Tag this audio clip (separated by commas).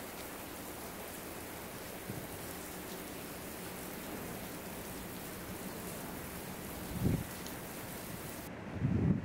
Rain on surface, Rain, Raindrop